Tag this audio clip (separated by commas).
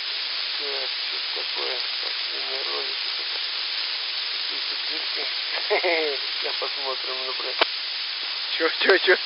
Sizzle, Frying (food)